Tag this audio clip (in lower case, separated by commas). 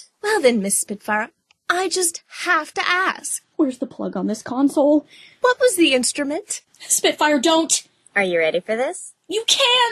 speech